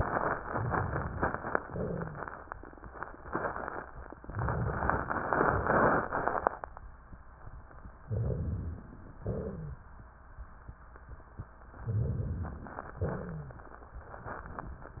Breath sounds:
Inhalation: 8.06-9.18 s, 11.80-13.05 s
Exhalation: 9.21-9.83 s, 13.03-13.81 s
Wheeze: 9.21-9.78 s, 12.97-13.65 s
Crackles: 13.03-13.81 s

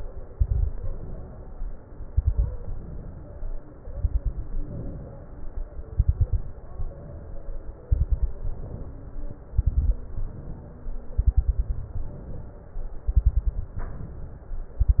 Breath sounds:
Inhalation: 0.80-1.77 s, 2.60-3.57 s, 4.71-5.75 s, 6.71-7.74 s, 8.49-9.53 s, 10.05-11.09 s, 11.99-13.02 s, 13.78-14.81 s
Exhalation: 0.24-0.80 s, 1.82-2.53 s, 3.82-4.65 s, 5.75-6.59 s, 7.88-8.46 s, 9.57-10.03 s, 11.21-11.93 s, 13.09-13.72 s, 14.80-15.00 s
Crackles: 0.24-0.80 s, 1.82-2.53 s, 3.82-4.65 s, 5.75-6.59 s, 7.88-8.46 s, 9.57-10.03 s, 11.21-11.93 s, 13.09-13.72 s, 14.80-15.00 s

